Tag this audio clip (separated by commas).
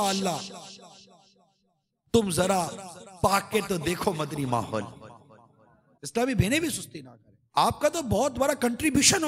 Speech, man speaking, monologue